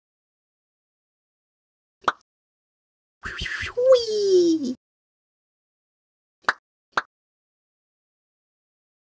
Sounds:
plop

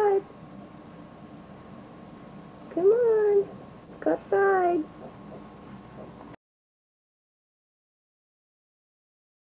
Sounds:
speech

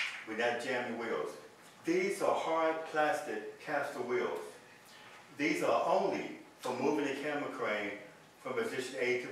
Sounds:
speech

